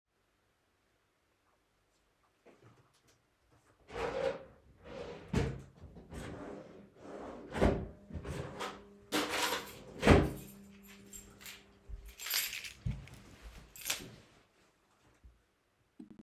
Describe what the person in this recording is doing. I searched for the keychain in a drawer and found it.